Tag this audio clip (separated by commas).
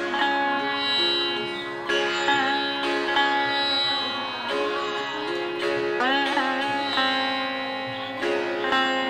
Musical instrument, Plucked string instrument, Sitar, Music